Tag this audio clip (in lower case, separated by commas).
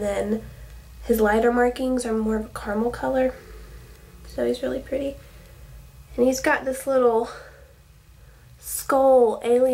speech, inside a small room